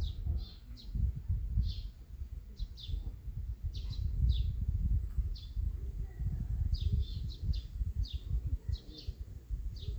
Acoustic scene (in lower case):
park